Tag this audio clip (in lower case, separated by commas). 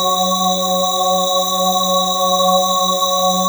music, keyboard (musical), organ, musical instrument